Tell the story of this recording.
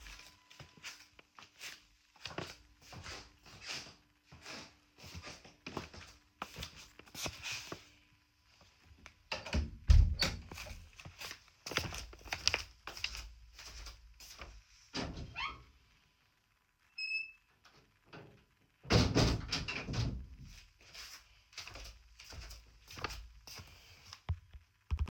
I walked in the room, closed the door, walked at the window to close it, then again I walked to my phone to pick it up.